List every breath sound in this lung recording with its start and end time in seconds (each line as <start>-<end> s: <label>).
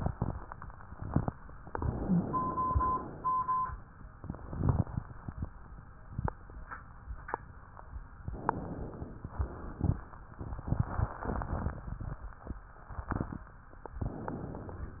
1.65-2.71 s: inhalation
1.97-2.25 s: wheeze
2.71-3.74 s: exhalation
8.27-9.30 s: inhalation
9.30-9.98 s: exhalation
9.32-9.59 s: wheeze
14.00-15.00 s: inhalation